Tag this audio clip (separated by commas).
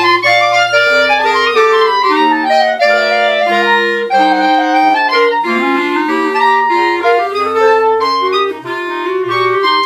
playing clarinet, Clarinet